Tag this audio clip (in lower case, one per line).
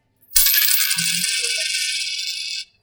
coin (dropping)
domestic sounds